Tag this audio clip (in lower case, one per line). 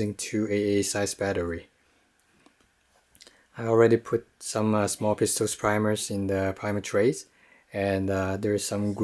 speech